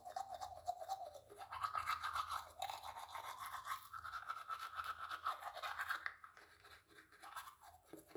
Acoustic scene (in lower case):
restroom